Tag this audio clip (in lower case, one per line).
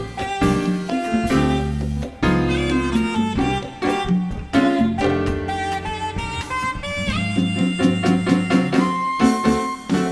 percussion
musical instrument
drum
drum kit
music
jazz